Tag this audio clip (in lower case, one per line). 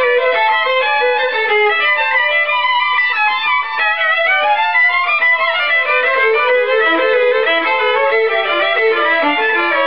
musical instrument
music
violin